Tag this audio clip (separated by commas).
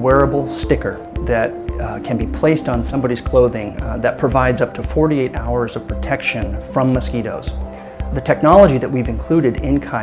Speech, Music